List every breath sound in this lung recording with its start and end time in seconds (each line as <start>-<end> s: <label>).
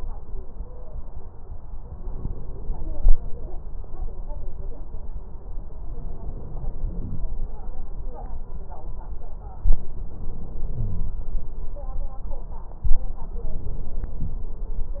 0.50-0.94 s: stridor
2.00-3.12 s: inhalation
6.08-7.20 s: inhalation
9.56-11.28 s: inhalation
10.78-11.28 s: wheeze
13.38-14.48 s: inhalation